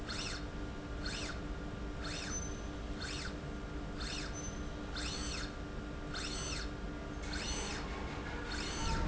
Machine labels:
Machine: slide rail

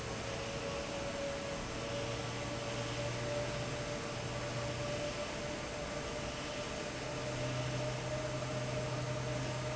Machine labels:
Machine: fan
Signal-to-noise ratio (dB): -6 dB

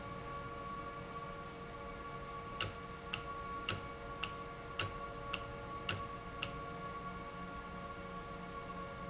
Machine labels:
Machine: valve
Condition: normal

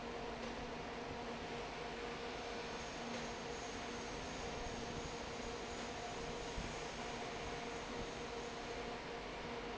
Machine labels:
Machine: fan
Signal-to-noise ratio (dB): 6 dB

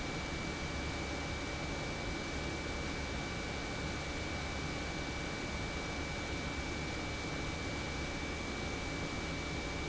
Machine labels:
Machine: pump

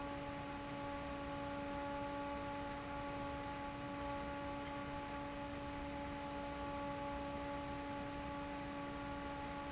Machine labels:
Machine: fan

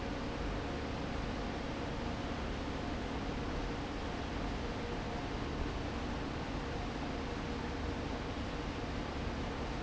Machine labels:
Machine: fan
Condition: abnormal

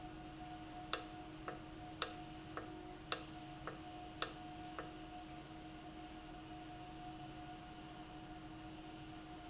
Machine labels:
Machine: valve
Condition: normal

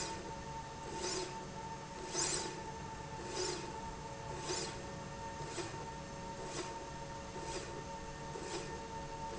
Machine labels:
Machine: slide rail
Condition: normal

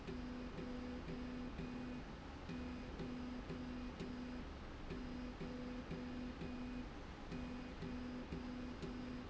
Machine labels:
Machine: slide rail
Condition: normal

